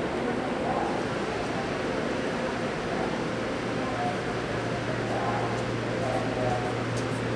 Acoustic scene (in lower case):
subway station